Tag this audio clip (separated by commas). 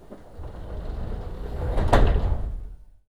Rail transport, Vehicle, underground